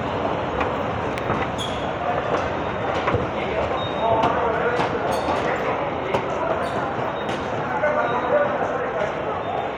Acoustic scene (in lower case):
subway station